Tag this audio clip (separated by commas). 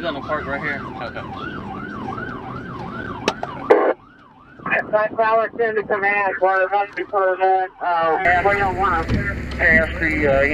Speech